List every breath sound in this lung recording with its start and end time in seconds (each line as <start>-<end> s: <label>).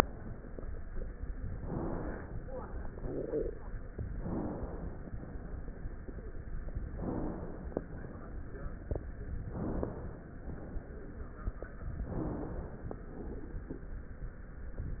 1.54-2.30 s: inhalation
4.08-5.02 s: inhalation
6.93-7.79 s: inhalation
9.41-10.31 s: inhalation
12.05-12.99 s: inhalation
12.99-13.80 s: exhalation
14.96-15.00 s: inhalation